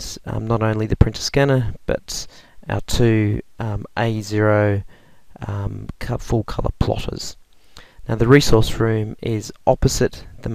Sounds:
Speech

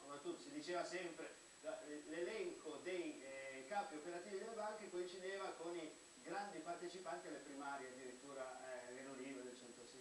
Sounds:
Speech

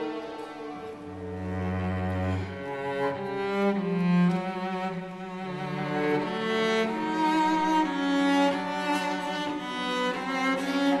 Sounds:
Cello, Bowed string instrument, Double bass, playing cello

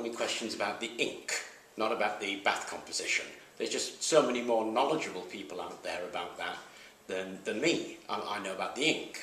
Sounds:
Speech, inside a small room

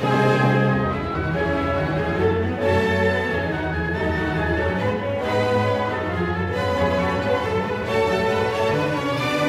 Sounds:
Music

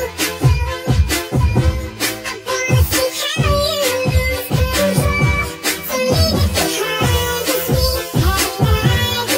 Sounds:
Music

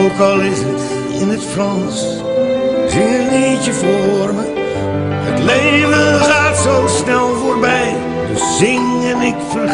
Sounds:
Music

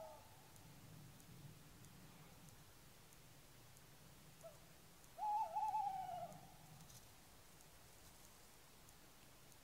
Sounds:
owl hooting

